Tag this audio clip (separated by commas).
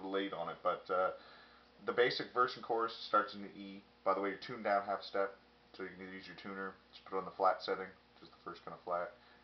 Speech